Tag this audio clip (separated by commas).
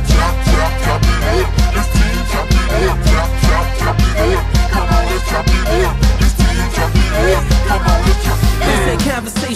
Music